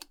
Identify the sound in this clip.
plastic switch being turned on